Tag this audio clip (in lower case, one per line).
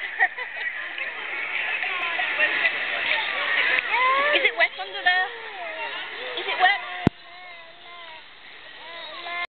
speech